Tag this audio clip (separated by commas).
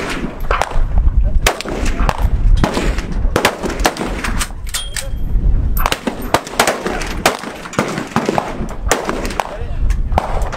machine gun shooting